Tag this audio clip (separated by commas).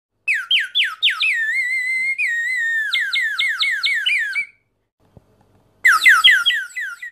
Bird